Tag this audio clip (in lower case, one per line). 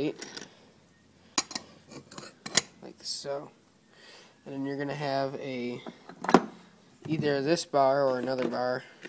speech